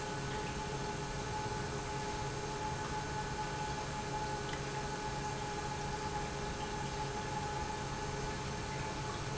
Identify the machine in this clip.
pump